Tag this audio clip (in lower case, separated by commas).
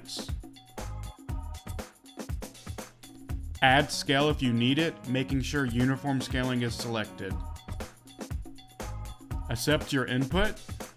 music, speech